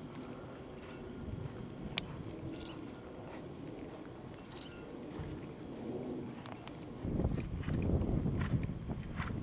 An animal clip clopping outdoors